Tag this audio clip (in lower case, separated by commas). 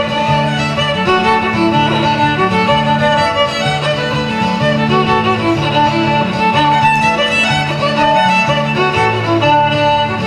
fiddle, musical instrument, music